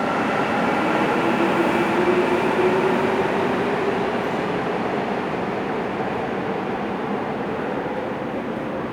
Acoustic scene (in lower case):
subway station